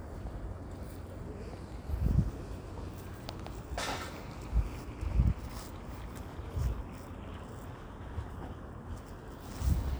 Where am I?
in a residential area